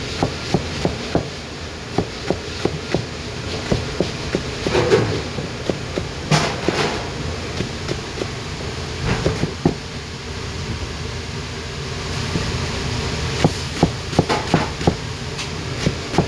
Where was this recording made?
in a kitchen